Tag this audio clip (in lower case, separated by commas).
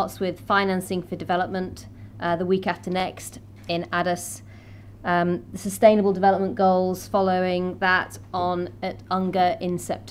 speech, narration, woman speaking